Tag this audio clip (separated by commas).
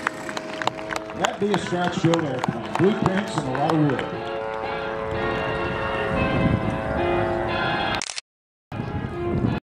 Music, Speech